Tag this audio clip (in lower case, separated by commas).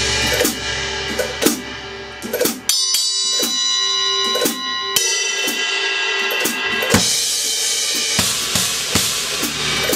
snare drum, drum kit, percussion, bass drum, drum, rimshot